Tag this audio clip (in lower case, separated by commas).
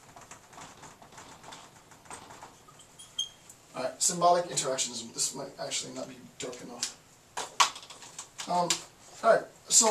speech